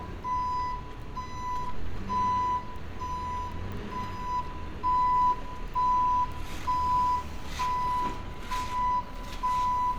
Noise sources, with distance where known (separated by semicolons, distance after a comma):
reverse beeper, near